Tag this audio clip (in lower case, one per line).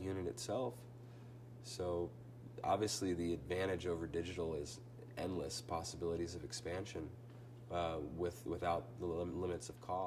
speech